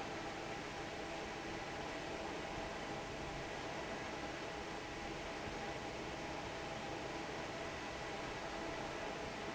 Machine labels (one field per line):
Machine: fan